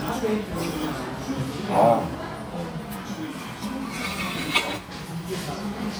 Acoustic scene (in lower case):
crowded indoor space